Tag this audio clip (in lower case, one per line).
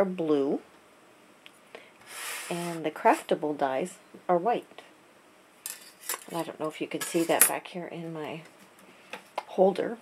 speech